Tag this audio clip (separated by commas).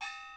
Percussion, Gong, Music, Musical instrument